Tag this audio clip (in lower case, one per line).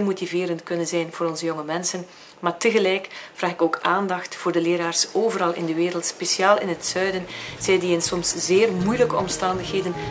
speech
music